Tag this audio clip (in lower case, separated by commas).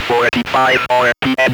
human voice, speech